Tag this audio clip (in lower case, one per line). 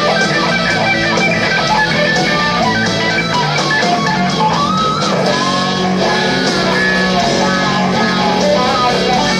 guitar
musical instrument
plucked string instrument
music
electric guitar